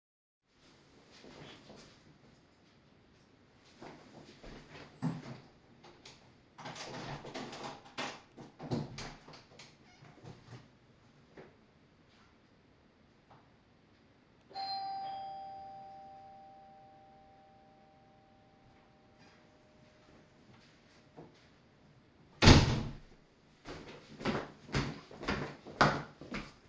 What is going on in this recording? I took some steps towards my door and opened it. Then i rang my own doorbell and walked in again closing the door behind me.